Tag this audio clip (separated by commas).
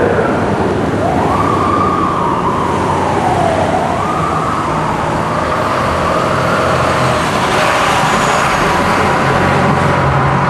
Vehicle, revving, Car